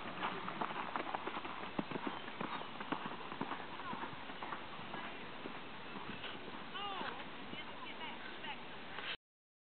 A horse galloping on dirt as people speak